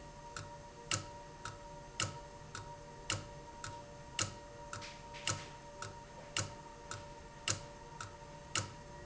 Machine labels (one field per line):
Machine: valve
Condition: abnormal